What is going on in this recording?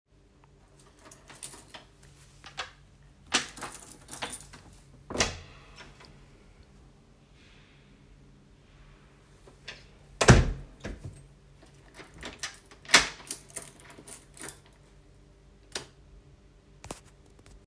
I picked up my keys, then opened the door, closed the door again with keys.